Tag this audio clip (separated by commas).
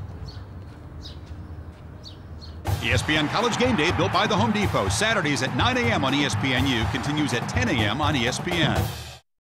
Animal, Music, Speech